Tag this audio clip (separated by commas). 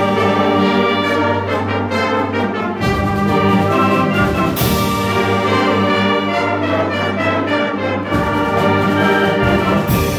Music